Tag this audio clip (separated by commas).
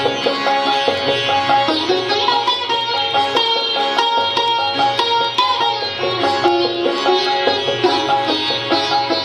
Sitar, Plucked string instrument, Classical music, Music, Musical instrument